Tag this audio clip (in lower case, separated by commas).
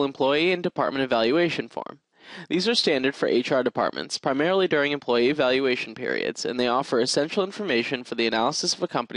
speech